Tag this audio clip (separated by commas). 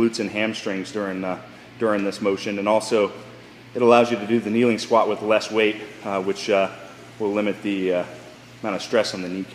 Speech